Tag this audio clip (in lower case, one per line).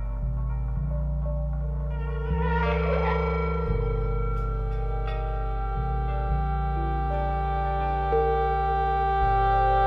music